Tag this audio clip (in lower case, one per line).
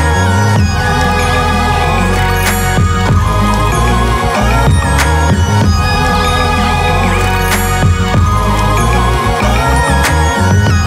music